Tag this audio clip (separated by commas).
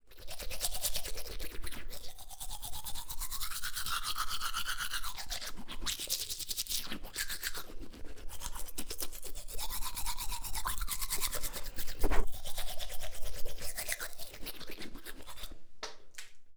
Domestic sounds